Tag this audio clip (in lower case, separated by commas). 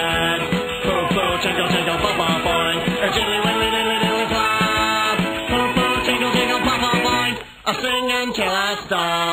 music